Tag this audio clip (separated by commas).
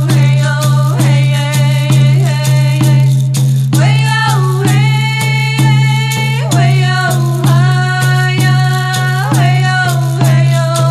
Music, Female singing